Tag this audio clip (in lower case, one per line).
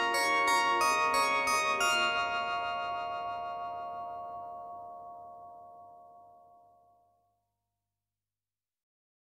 music